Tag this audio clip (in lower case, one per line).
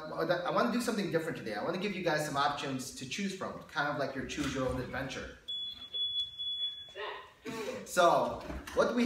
speech
smoke alarm